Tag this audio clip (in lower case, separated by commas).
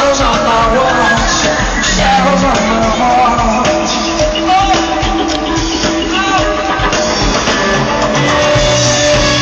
music, outside, urban or man-made